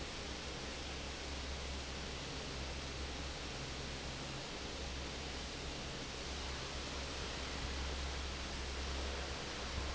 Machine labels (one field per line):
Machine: fan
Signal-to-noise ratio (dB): 0 dB